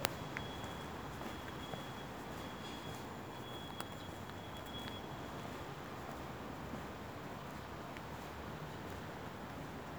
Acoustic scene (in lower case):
residential area